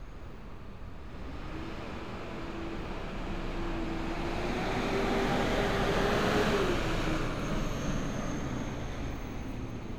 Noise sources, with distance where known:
large-sounding engine, near

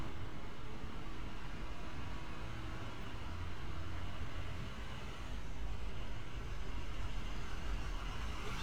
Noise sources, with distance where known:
large-sounding engine

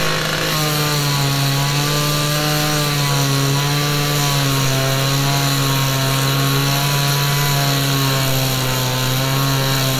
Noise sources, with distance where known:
unidentified powered saw

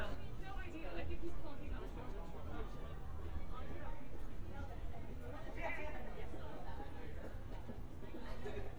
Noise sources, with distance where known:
person or small group talking, near

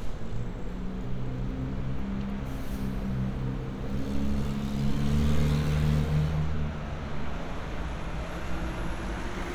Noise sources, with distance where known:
medium-sounding engine, near; large-sounding engine

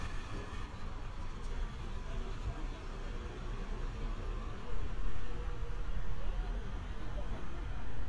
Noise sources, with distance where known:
large-sounding engine, far; person or small group talking

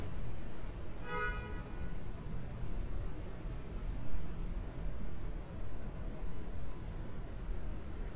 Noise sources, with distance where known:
car horn, far

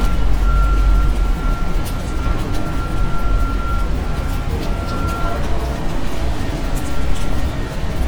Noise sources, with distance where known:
unidentified alert signal, far

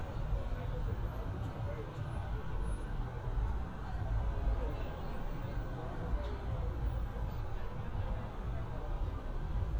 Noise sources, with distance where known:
person or small group talking

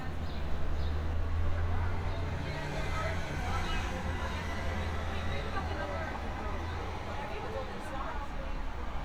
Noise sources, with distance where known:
medium-sounding engine; person or small group talking, near

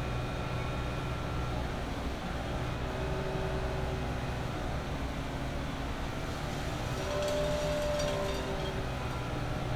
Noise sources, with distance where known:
unidentified impact machinery

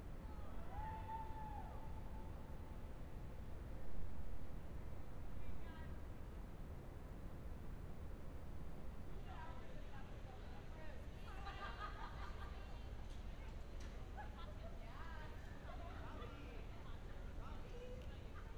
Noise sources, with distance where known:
unidentified human voice

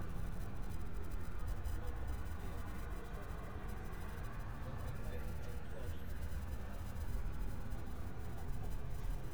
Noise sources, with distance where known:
person or small group talking, far

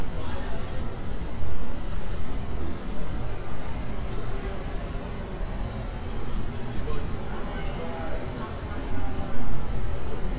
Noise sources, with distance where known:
person or small group talking

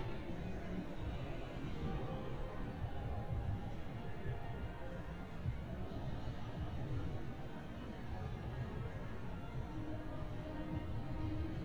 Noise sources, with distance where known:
music from a fixed source

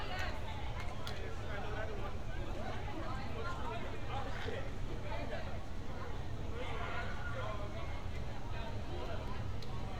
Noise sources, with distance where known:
person or small group talking, near

